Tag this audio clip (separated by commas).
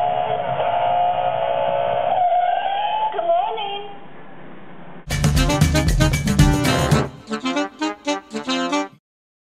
Music, Speech